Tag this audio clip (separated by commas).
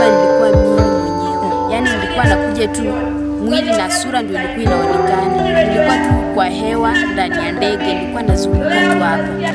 Music, Speech